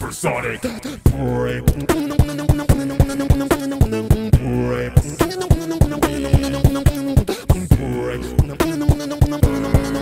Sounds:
beat boxing

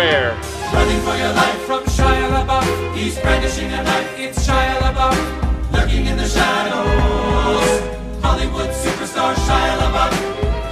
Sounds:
music

